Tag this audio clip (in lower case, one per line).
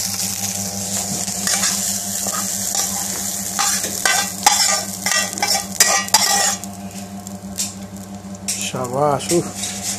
frying (food)
speech
inside a small room